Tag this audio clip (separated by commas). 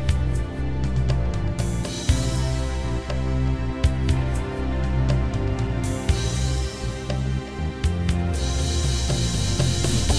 Music